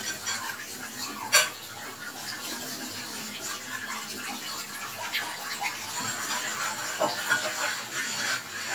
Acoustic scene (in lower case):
kitchen